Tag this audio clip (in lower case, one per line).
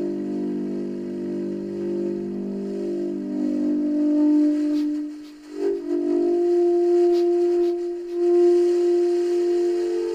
music